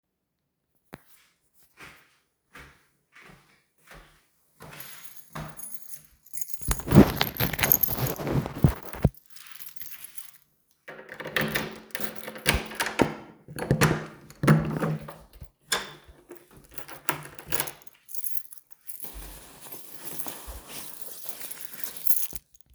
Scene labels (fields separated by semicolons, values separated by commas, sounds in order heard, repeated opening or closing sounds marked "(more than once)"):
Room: bedroom; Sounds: footsteps, keys, door (more than once)